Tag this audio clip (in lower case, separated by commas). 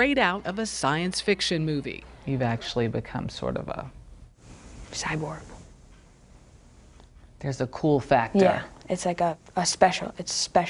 speech